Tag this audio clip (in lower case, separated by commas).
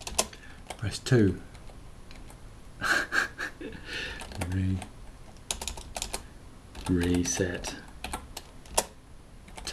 typing, speech